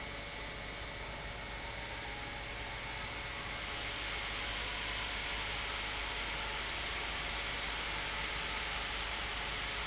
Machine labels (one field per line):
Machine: pump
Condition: normal